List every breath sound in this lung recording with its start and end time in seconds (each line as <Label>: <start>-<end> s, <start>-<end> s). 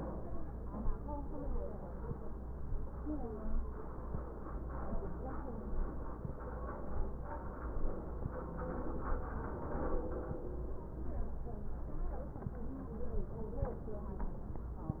Inhalation: 13.25-14.24 s